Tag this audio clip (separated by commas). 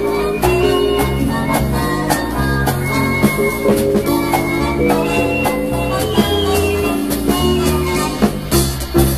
Swing music